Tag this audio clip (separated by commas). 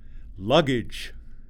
Speech, Human voice, Male speech